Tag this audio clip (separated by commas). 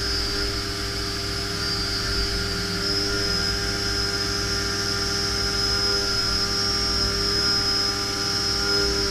Engine